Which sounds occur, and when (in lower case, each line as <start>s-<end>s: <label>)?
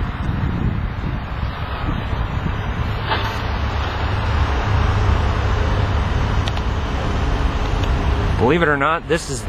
0.0s-2.0s: wind noise (microphone)
0.0s-9.4s: traffic noise
0.0s-9.4s: wind
2.3s-4.4s: wind noise (microphone)
3.0s-3.3s: generic impact sounds
6.4s-6.6s: clicking
7.8s-7.9s: clicking
8.4s-9.4s: male speech